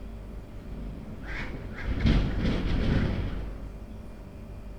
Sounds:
Wind

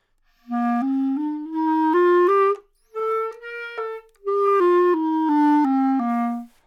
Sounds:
woodwind instrument, Music, Musical instrument

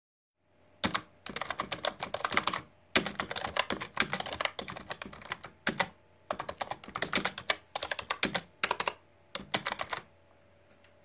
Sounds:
Typing, Domestic sounds, Computer keyboard

